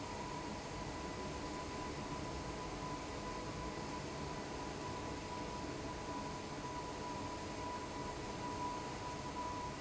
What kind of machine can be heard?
fan